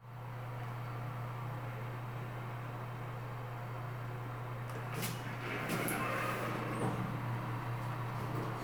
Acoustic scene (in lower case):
elevator